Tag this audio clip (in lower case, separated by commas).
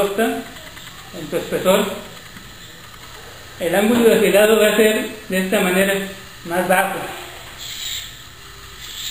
sharpen knife